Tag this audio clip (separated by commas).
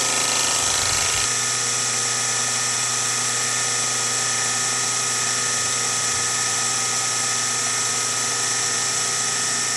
Tools